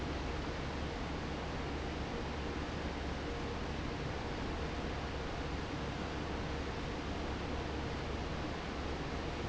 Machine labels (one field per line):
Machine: fan